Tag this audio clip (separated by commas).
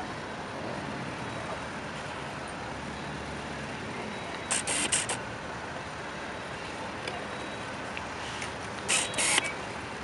Vehicle